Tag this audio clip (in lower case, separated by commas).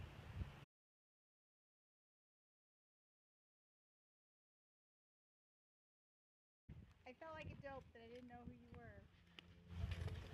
speech